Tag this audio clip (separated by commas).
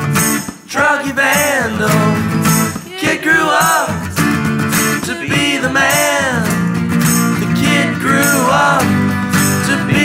Rattle, Music